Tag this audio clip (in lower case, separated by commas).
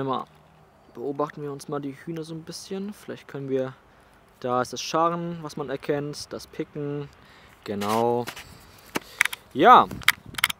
speech